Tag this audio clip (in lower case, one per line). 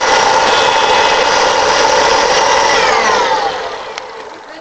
domestic sounds